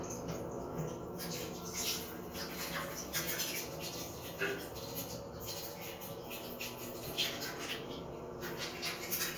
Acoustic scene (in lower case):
restroom